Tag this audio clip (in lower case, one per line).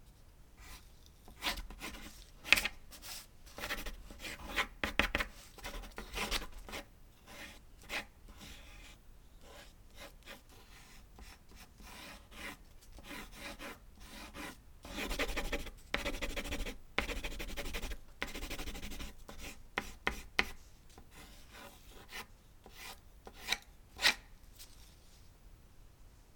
writing
domestic sounds